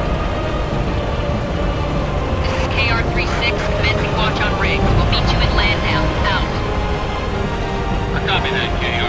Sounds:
speech, music

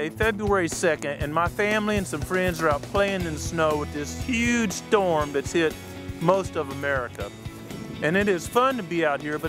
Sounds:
music, speech

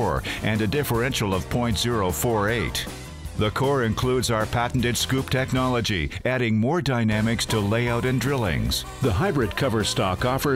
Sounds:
speech, music

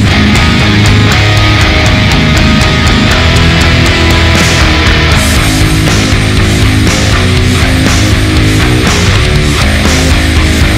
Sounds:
music

